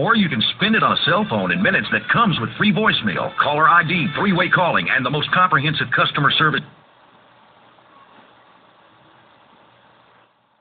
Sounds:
Radio, Speech, Music

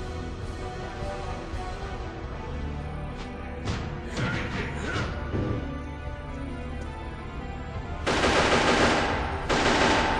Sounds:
Music

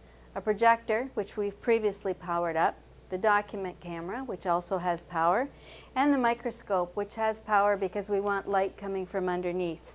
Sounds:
Speech

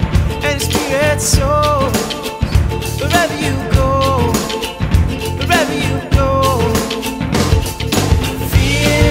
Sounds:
Music

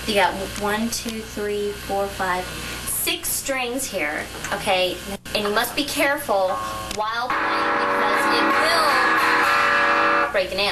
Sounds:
Music, Musical instrument, Plucked string instrument, Acoustic guitar, Guitar, Strum, Speech

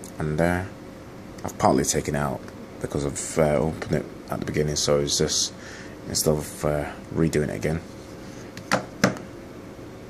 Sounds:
Speech

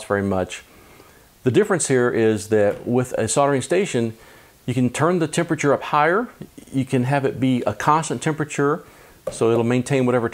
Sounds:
Speech

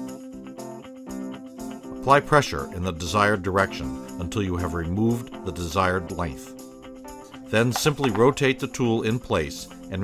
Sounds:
Speech, Music

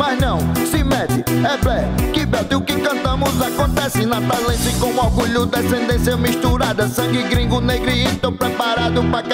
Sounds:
Music

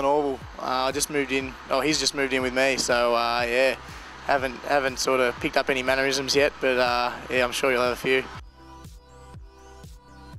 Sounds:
Speech, Music

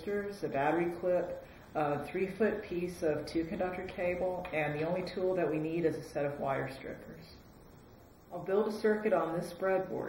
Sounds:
Speech

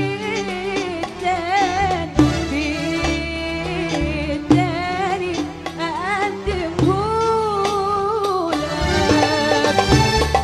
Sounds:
Music, Folk music, Middle Eastern music

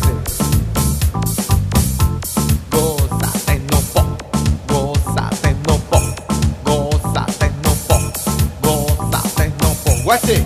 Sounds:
Music, Techno, Electronic music

